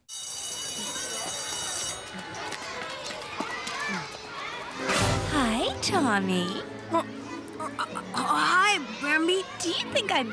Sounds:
music
speech

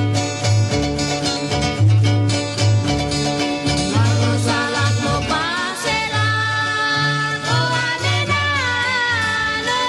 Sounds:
music
traditional music

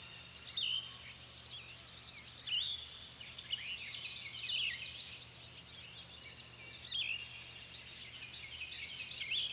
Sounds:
bird chirping

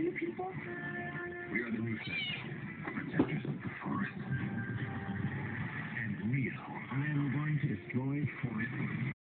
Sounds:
speech
pets
cat
meow

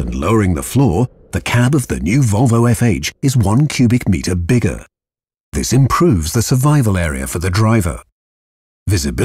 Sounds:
speech

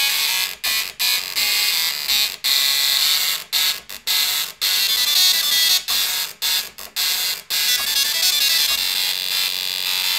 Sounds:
printer

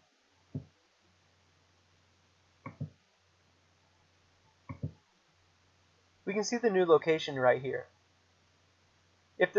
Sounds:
clicking

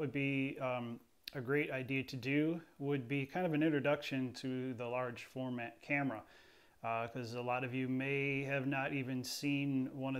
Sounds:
speech

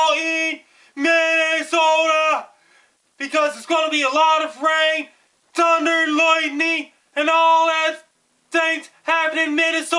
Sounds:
speech

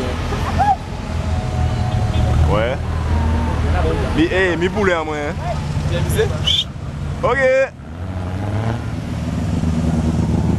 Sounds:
speech

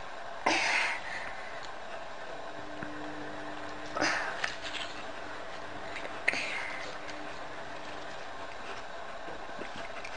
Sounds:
people eating apple

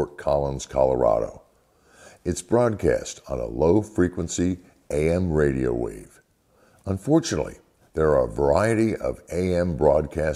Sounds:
speech

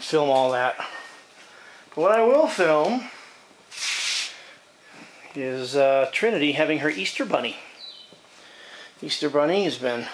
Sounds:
speech

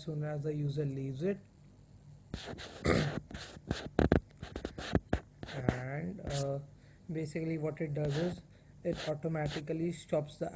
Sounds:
speech

